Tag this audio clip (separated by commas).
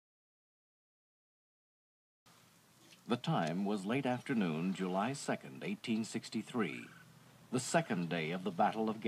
Speech